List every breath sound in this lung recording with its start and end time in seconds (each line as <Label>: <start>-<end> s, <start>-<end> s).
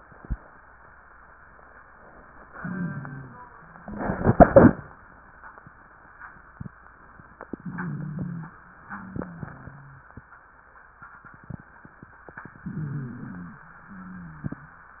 Inhalation: 2.50-3.46 s, 7.58-8.54 s, 12.58-13.64 s
Exhalation: 8.86-10.08 s, 13.88-14.94 s
Wheeze: 2.50-3.46 s, 7.58-8.54 s, 8.86-10.08 s, 12.58-13.64 s, 13.88-14.94 s